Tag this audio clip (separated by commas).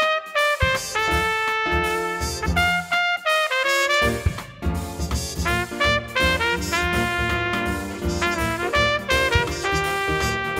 Music, Trumpet, Musical instrument